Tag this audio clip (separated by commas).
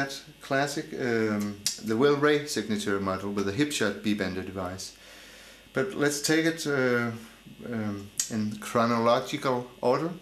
Speech